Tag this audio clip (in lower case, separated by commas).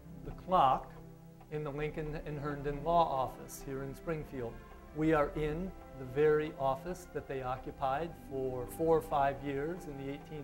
speech, music